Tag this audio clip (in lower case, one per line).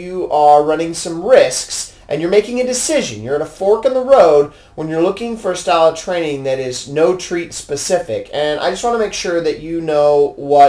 speech